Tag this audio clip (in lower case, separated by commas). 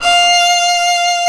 musical instrument, bowed string instrument, music